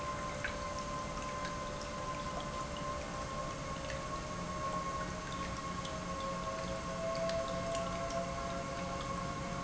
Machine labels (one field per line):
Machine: pump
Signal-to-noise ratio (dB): -6 dB